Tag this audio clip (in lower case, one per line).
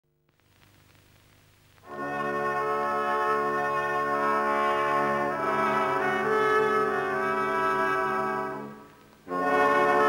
french horn
brass instrument